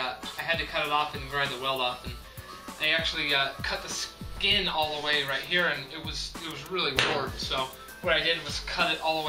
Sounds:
music
speech

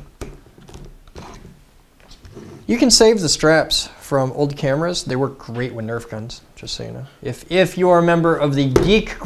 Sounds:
speech

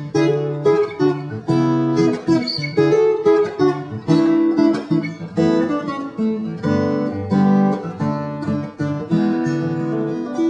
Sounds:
music

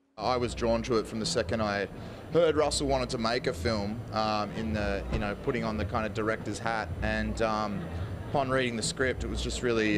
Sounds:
speech

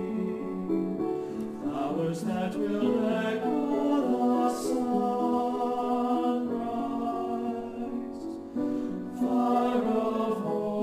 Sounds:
music

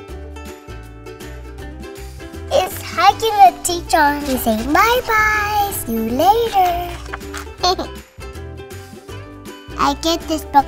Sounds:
music
speech

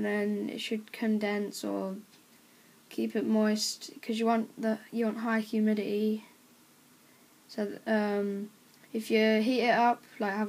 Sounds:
speech

